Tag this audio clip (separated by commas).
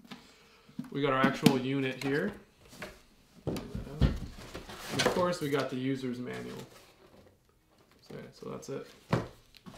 Speech